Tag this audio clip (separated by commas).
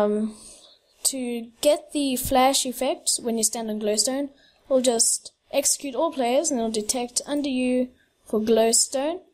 Speech